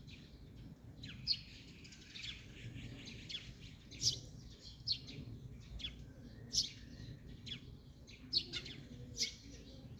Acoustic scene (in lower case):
park